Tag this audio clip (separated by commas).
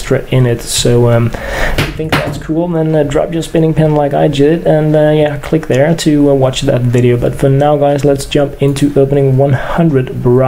Speech